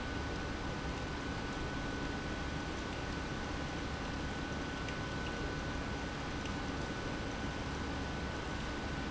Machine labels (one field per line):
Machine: pump